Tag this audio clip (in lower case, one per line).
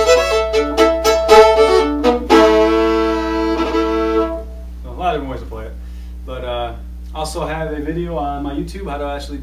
musical instrument
music
speech
fiddle